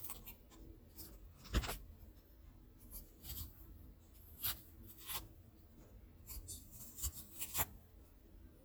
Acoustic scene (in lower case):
kitchen